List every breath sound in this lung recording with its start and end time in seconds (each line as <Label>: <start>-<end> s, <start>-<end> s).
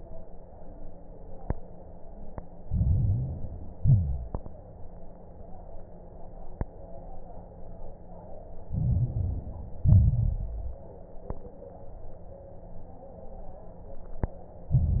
Inhalation: 2.62-3.74 s, 8.66-9.84 s, 14.74-15.00 s
Exhalation: 3.80-4.36 s, 9.86-10.91 s
Crackles: 2.62-3.74 s, 3.80-4.36 s, 8.66-9.84 s, 9.86-10.91 s, 14.74-15.00 s